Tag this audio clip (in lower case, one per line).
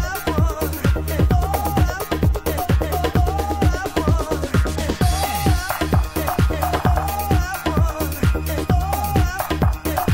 electronic music
music
disco